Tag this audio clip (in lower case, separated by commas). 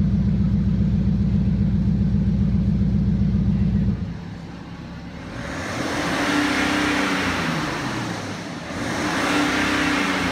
vehicle, inside a large room or hall, car